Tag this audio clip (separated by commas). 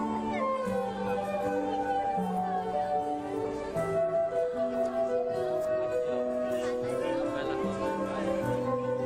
Music, Speech